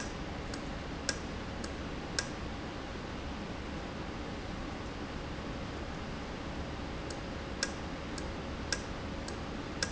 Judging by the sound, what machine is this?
valve